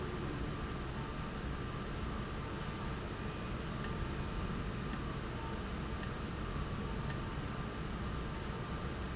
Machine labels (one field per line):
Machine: valve